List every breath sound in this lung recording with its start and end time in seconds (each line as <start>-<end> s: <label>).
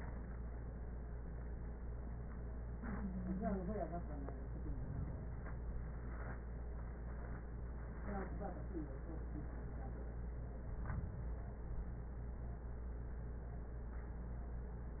4.54-5.86 s: inhalation
10.59-11.91 s: inhalation